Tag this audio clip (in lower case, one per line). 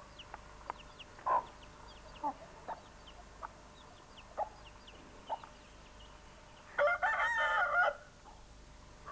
bird
fowl
chicken